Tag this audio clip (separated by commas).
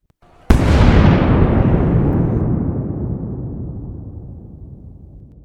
Explosion, Boom